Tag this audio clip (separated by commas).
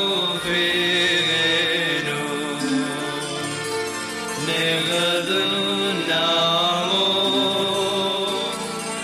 Chant